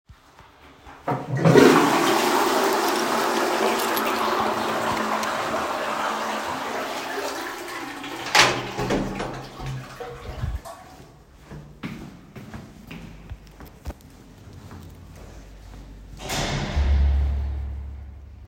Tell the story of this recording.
I flushed the toilet, opened the door and start walking away.